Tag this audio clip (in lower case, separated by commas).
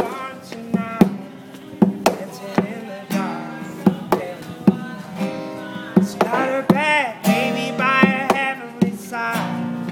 male singing, music